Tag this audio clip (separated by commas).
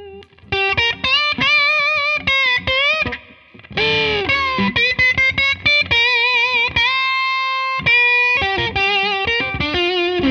Music